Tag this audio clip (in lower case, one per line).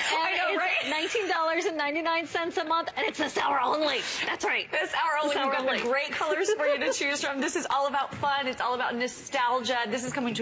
speech